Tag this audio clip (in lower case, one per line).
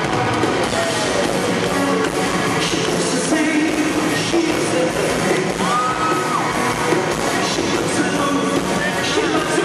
bang
singing